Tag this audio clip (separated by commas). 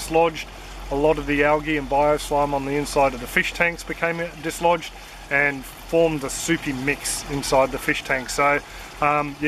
Speech